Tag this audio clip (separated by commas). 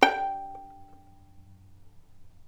Music, Musical instrument, Bowed string instrument